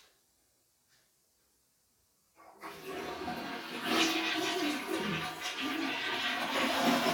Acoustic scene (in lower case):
restroom